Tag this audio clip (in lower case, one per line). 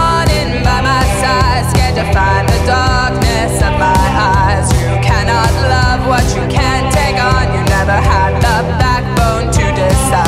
independent music
music
singing